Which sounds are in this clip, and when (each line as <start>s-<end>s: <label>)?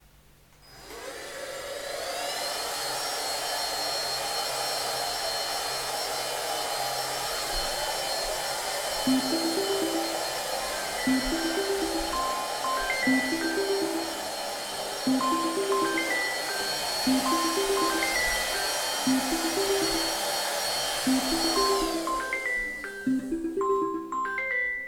0.6s-23.9s: vacuum cleaner
9.0s-24.9s: phone ringing